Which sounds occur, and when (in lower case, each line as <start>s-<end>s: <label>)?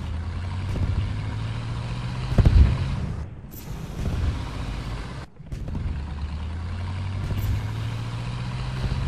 0.0s-9.0s: motor vehicle (road)
1.1s-3.2s: revving
4.0s-5.2s: revving
5.4s-5.7s: generic impact sounds
5.7s-9.0s: revving